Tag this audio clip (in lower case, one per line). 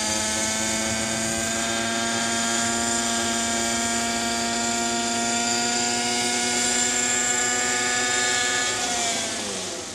helicopter